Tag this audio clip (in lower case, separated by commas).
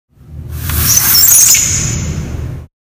squeak